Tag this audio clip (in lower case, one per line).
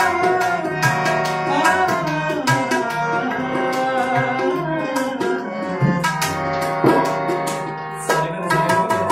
playing tabla